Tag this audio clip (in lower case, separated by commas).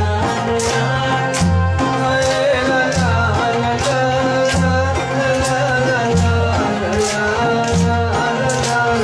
male singing, music